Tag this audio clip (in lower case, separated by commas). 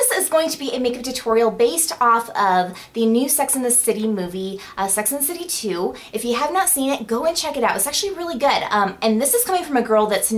speech